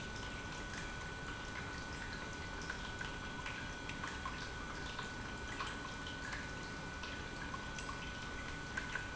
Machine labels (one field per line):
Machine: pump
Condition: normal